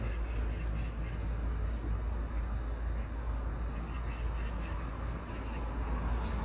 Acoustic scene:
street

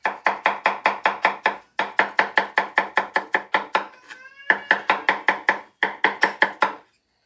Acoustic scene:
kitchen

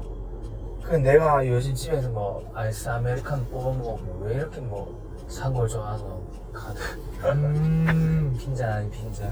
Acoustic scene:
car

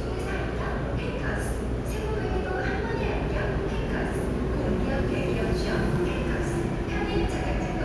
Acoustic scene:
subway station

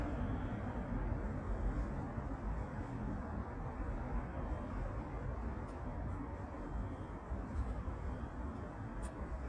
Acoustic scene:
residential area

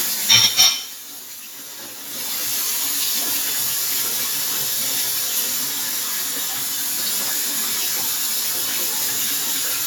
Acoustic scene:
kitchen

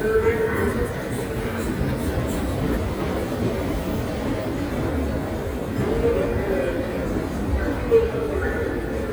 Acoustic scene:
subway station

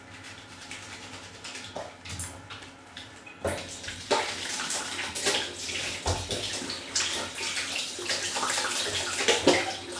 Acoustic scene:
restroom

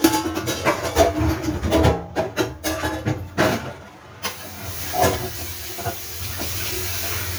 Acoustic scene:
kitchen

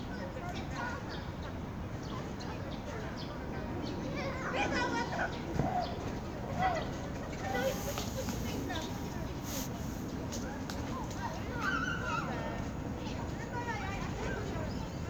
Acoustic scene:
park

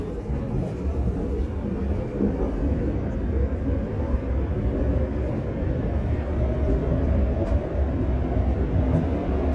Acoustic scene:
subway train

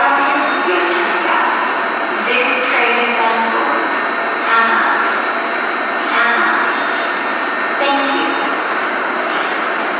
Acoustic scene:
subway station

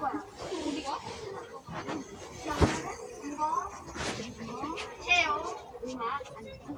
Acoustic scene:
residential area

